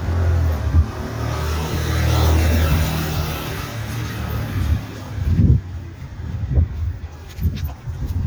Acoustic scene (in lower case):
residential area